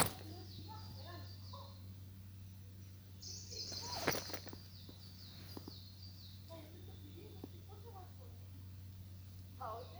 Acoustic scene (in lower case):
park